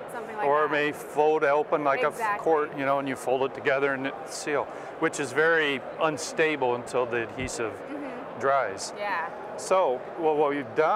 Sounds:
Speech

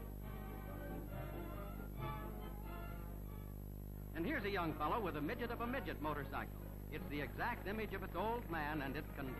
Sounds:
Music, Speech

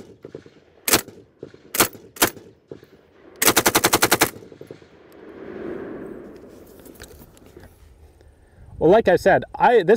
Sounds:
machine gun shooting

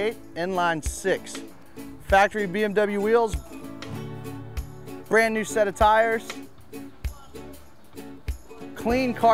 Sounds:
Speech, footsteps, Music

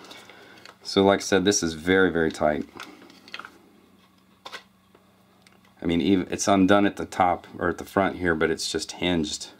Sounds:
Speech

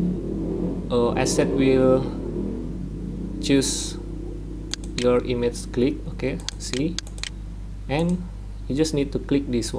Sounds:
Speech

